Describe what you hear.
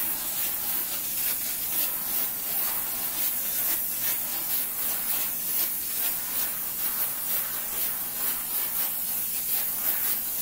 A hissing sound of a sprayer is heard repeatedly